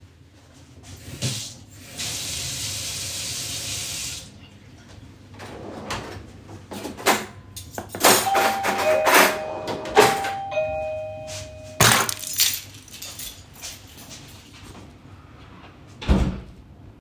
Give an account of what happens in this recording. I rinsed my hands under running water. Then opened the drawer and put aside some cuttlery. While I was doing so the doorbell rang. So I stopped what I was doing and grabbed my keys. Went out and closed the door.